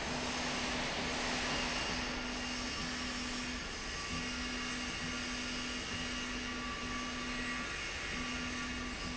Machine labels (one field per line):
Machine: slide rail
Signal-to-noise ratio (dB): -6 dB